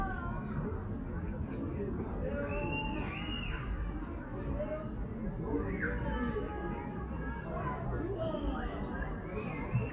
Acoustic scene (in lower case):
park